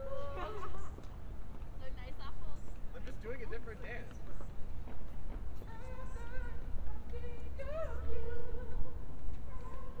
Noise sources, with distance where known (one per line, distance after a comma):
person or small group talking, far